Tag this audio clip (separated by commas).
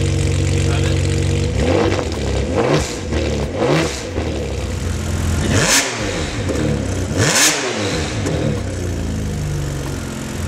Speech